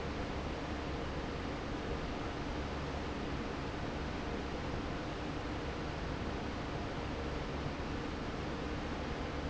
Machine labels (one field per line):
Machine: fan